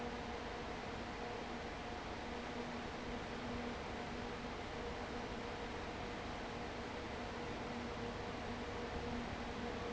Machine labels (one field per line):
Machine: fan